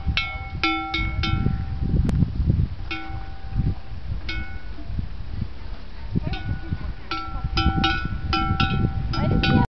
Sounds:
speech

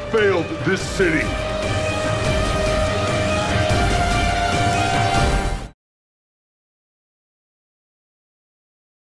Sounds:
music, speech

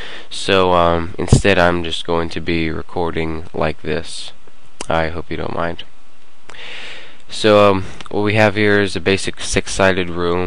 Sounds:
speech

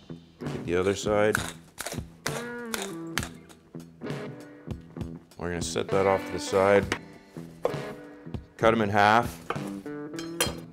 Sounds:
music, speech

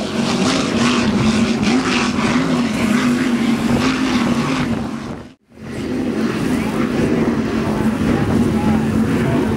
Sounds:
speedboat acceleration, motorboat, wind noise (microphone), boat, wind

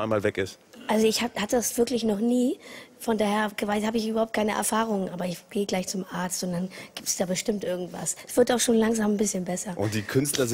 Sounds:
speech

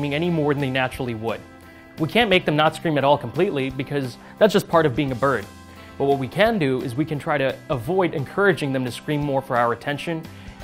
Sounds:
speech, music

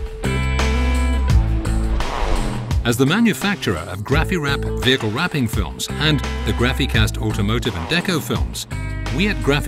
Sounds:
music, speech

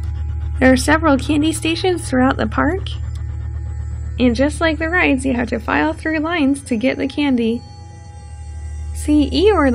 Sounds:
music, speech

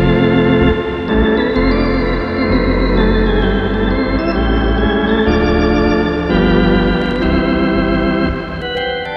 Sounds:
playing hammond organ, organ, hammond organ

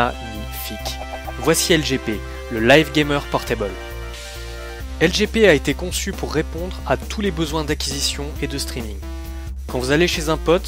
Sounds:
music, speech

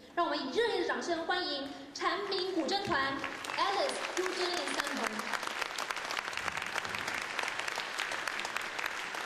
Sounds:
speech

